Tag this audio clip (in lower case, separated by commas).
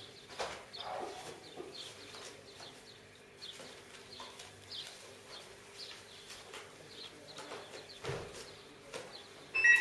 animal